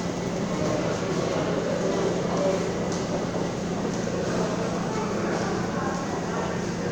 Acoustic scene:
subway station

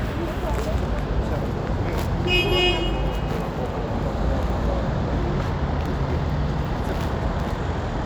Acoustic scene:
street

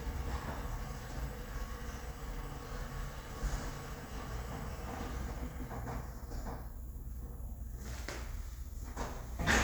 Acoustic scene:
elevator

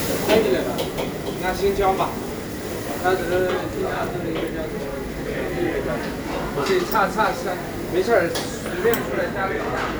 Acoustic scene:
restaurant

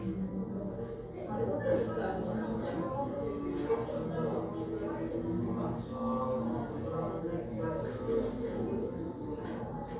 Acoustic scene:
crowded indoor space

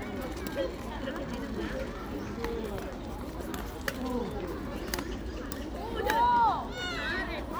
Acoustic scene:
park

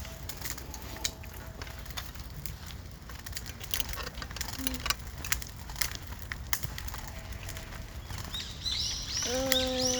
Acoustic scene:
park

